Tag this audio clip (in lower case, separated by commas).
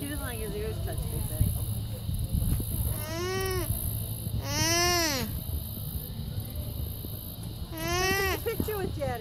speech